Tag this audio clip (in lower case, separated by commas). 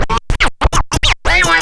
scratching (performance technique), musical instrument, music